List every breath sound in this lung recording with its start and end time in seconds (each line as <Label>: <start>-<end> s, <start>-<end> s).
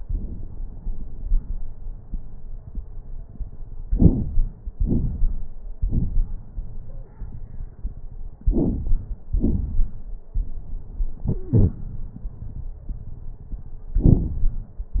Inhalation: 3.87-4.67 s, 8.46-9.26 s
Exhalation: 4.78-5.58 s, 9.33-10.14 s
Wheeze: 11.29-11.76 s
Crackles: 3.87-4.67 s, 4.78-5.58 s, 8.46-9.26 s, 9.33-10.14 s